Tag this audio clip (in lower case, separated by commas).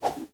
whoosh